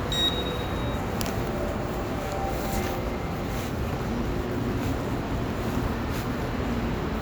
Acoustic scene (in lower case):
subway station